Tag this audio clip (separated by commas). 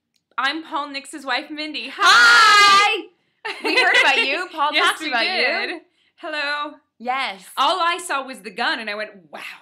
Speech